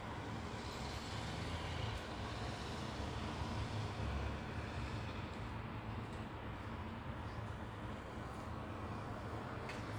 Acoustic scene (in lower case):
residential area